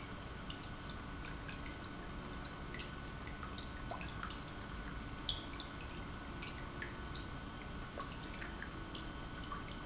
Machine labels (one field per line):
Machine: pump